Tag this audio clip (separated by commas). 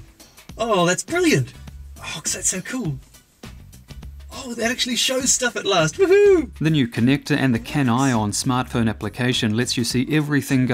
Music, Speech